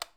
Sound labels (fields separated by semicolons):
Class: switch; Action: being turned off; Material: plastic